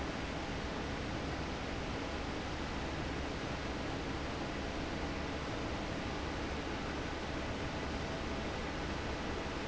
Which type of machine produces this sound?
fan